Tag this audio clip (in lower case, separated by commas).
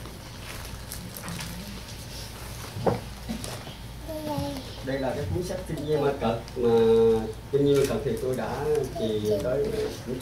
speech